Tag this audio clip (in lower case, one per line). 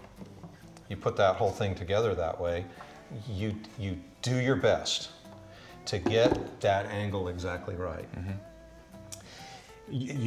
music
plucked string instrument
musical instrument
guitar
speech